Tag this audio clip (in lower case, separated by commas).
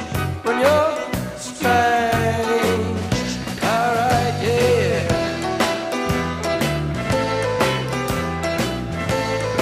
country, music